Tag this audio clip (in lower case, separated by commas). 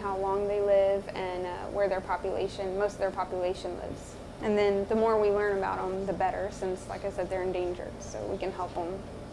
inside a small room, speech